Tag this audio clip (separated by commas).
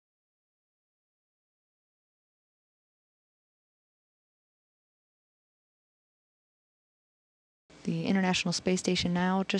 Speech